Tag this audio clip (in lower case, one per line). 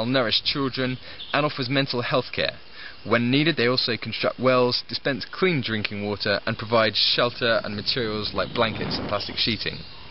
speech
outside, rural or natural